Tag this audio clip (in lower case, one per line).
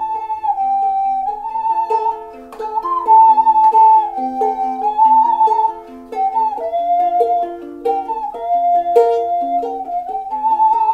flute
inside a small room
music
ukulele